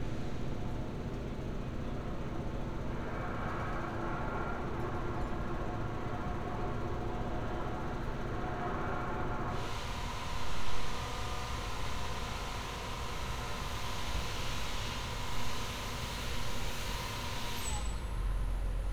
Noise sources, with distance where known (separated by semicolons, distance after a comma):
large-sounding engine, near